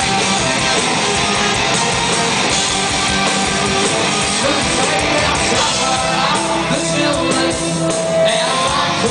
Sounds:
Rhythm and blues, Music

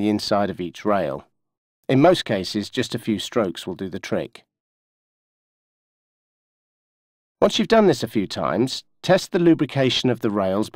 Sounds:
inside a small room, Speech

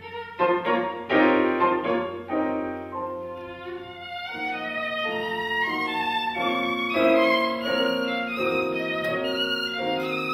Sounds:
Music, fiddle, Musical instrument

